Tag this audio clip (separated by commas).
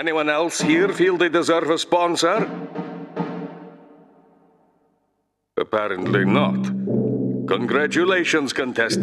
Timpani